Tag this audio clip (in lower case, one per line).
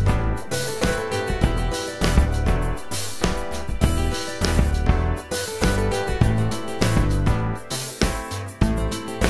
music